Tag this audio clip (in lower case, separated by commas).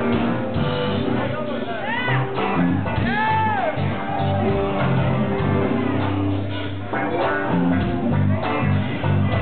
music, guitar, strum, musical instrument, speech, electric guitar, plucked string instrument